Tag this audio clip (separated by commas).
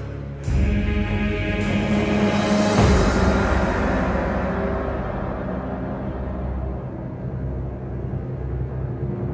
Sound effect, Music